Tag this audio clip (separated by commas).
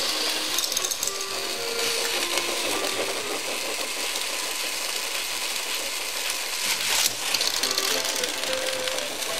Sizzle